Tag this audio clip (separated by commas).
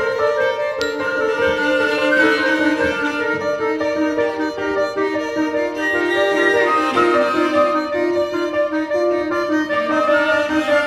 Orchestra